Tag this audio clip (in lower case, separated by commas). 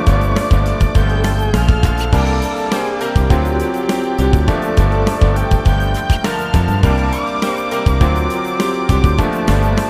music